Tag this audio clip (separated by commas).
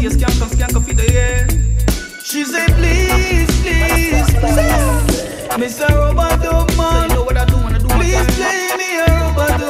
Hip hop music, Music